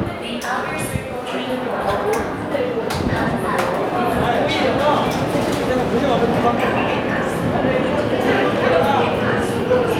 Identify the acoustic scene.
subway station